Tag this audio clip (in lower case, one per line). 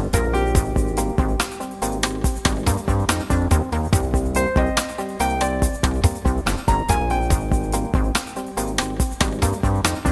music